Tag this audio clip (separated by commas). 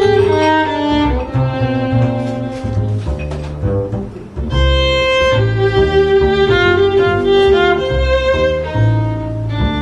Violin, Musical instrument, Music